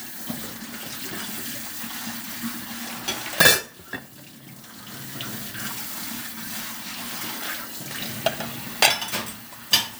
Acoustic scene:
kitchen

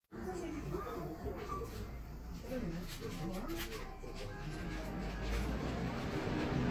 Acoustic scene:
crowded indoor space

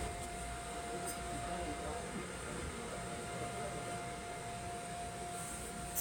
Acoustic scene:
subway train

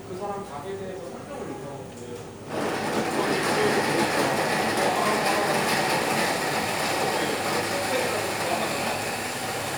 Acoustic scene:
cafe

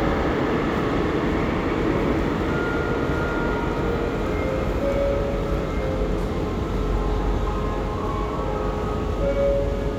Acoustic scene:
subway station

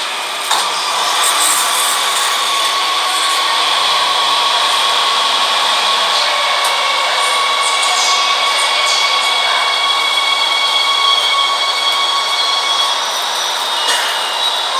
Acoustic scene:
subway train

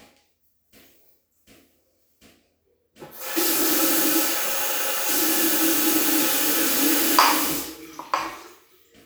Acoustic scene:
restroom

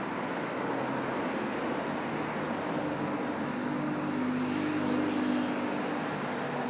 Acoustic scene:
street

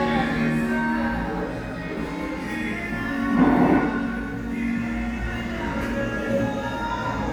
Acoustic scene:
cafe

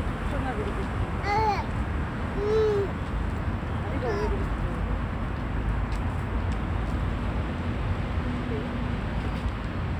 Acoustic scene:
residential area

